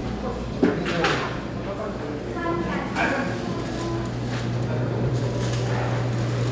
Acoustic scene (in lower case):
cafe